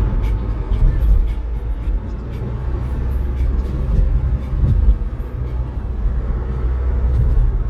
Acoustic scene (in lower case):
car